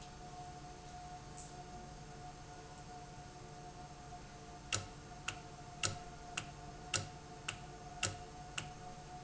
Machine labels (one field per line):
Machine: valve